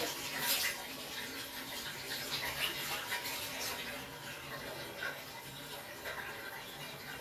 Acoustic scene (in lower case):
restroom